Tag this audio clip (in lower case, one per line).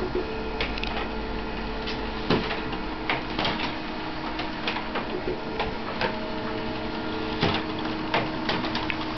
printer